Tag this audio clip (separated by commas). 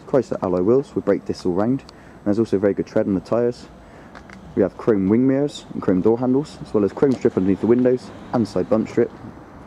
Speech